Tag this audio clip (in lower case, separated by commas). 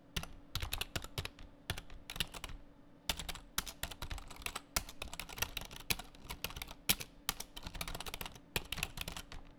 domestic sounds, typing